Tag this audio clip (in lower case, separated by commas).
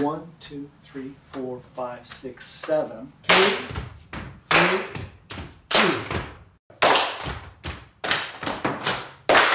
speech